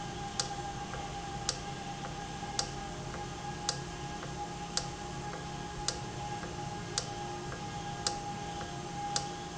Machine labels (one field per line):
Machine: valve